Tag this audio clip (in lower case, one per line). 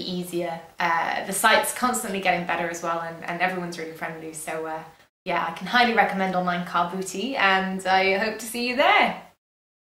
speech